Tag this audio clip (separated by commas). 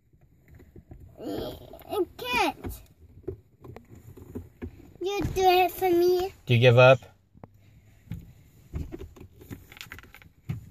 kid speaking, Speech